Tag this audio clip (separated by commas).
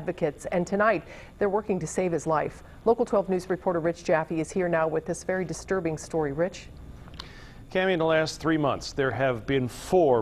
Speech